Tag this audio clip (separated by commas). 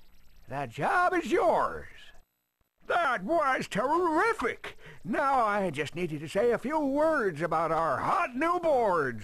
Speech